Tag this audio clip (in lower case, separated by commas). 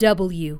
woman speaking, human voice, speech